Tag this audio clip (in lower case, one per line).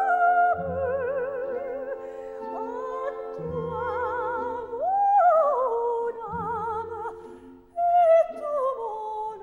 opera
music